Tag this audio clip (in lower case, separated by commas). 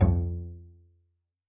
musical instrument, bowed string instrument, music